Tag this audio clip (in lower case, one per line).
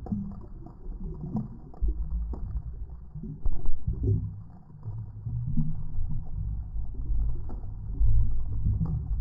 underwater bubbling